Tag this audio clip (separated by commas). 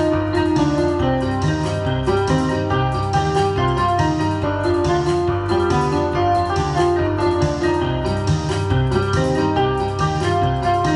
Music, Electric piano